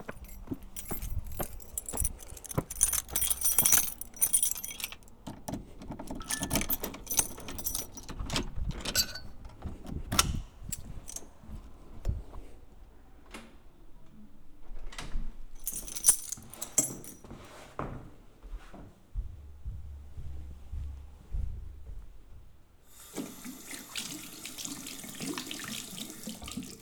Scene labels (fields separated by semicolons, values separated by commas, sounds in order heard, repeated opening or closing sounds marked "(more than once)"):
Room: hallway, bathroom; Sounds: footsteps, keys, door (more than once), phone ringing, running water